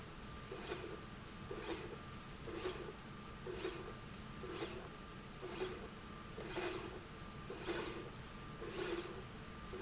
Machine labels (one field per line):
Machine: slide rail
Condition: normal